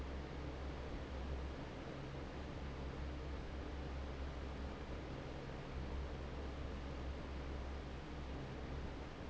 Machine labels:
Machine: fan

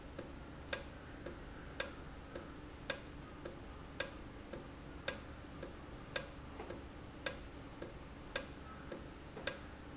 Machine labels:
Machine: valve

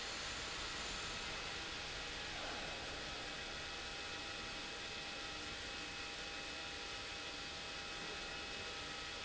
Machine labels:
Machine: pump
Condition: abnormal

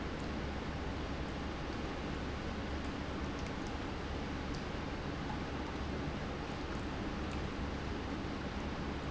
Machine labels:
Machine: pump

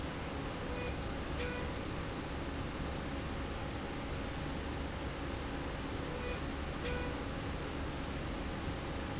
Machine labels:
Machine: slide rail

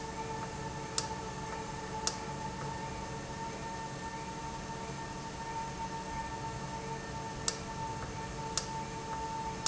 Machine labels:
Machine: valve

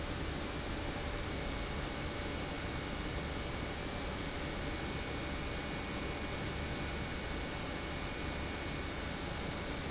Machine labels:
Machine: pump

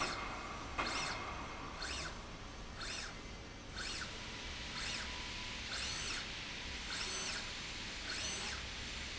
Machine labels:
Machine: slide rail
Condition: normal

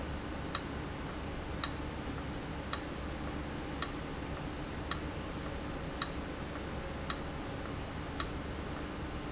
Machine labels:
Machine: valve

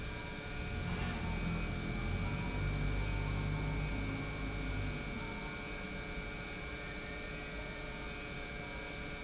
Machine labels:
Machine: pump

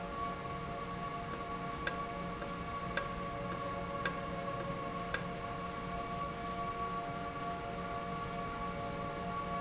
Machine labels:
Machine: valve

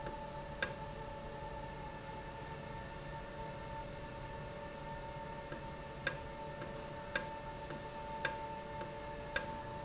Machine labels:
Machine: valve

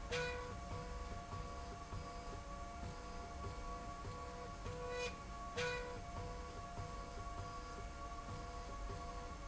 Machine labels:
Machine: slide rail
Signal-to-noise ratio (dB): 6 dB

